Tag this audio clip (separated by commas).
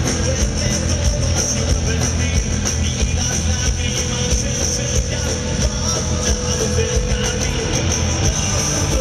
Music